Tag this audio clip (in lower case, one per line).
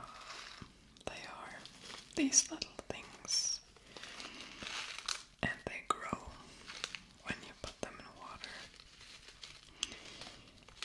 speech